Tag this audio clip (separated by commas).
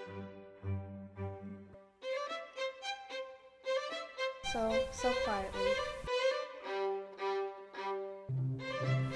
Music, Speech